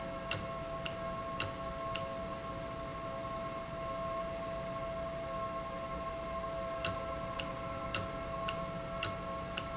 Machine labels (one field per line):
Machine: valve